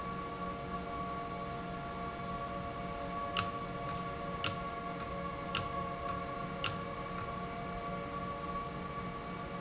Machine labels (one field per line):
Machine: valve